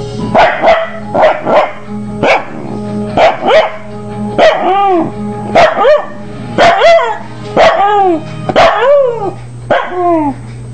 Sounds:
music
bow-wow
domestic animals
dog

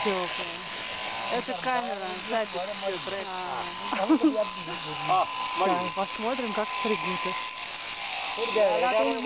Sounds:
speech
electric razor

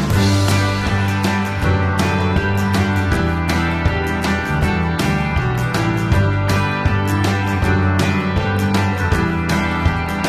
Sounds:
music

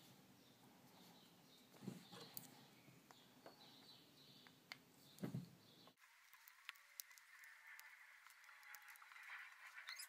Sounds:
silence
inside a small room

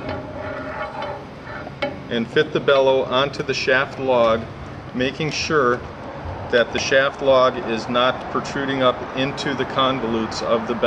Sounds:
speech

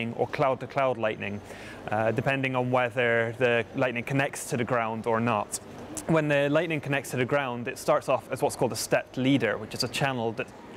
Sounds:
speech

